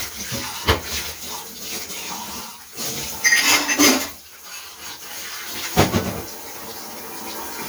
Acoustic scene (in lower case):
kitchen